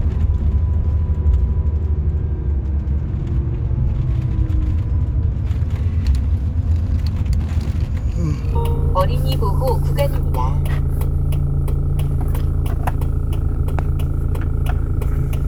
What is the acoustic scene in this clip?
car